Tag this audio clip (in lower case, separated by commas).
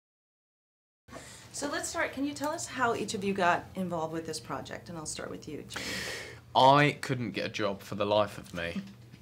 speech